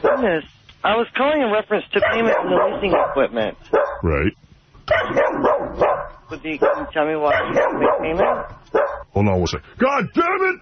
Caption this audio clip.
Two men speaking and a dog barking